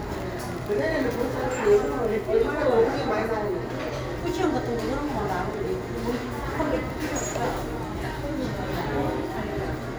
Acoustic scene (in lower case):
cafe